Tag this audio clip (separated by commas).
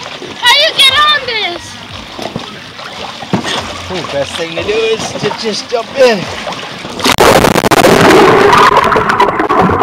splatter, splashing water, Speech